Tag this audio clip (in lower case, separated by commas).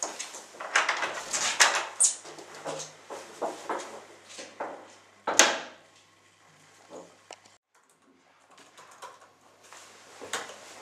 inside a small room